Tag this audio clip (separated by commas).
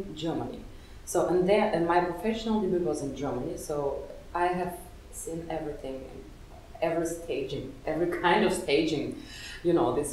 Speech